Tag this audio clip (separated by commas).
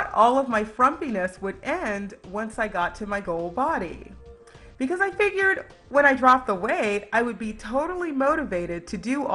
Speech, Music